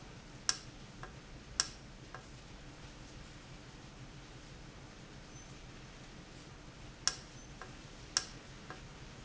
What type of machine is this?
valve